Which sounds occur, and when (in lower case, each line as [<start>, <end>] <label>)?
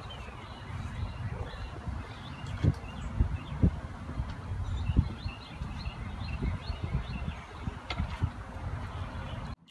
[0.00, 9.52] tweet
[0.00, 9.52] wind noise (microphone)
[7.85, 8.06] generic impact sounds